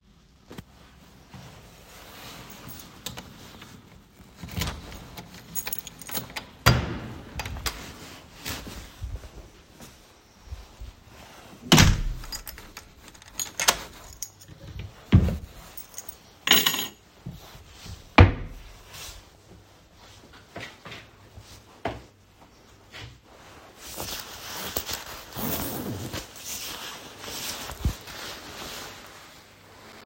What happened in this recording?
I opened the front door with my key, walked in, closed the door, put the keys in the wardrobe, took off my shoes, unzipped my coat.